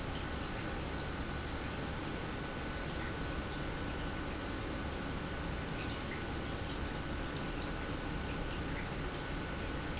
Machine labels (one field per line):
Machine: pump